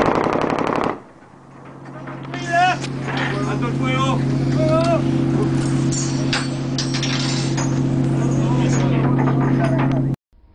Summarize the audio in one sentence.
Someone shoots a machine gun with people talking in the background